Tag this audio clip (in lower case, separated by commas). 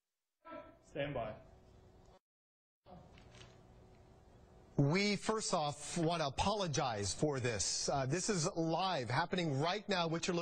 man speaking, speech, monologue